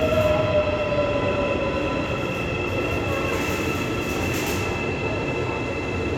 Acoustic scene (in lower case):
subway station